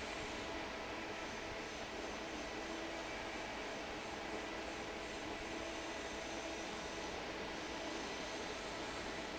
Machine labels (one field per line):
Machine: fan